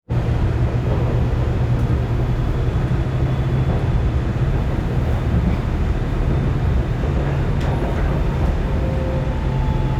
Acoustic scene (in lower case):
subway train